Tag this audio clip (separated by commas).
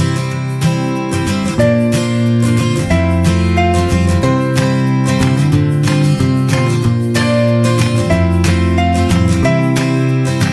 Music